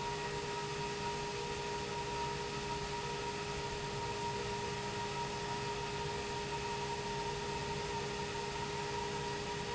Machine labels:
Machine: pump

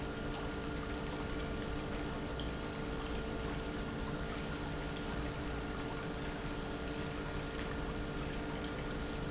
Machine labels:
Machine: pump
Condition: normal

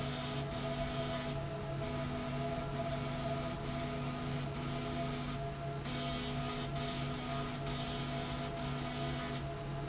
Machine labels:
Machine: slide rail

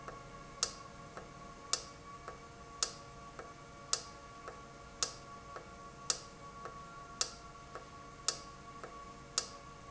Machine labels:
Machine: valve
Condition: normal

